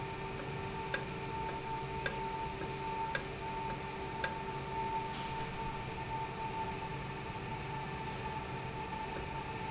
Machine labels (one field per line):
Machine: valve